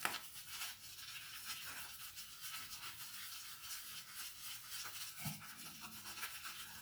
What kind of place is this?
restroom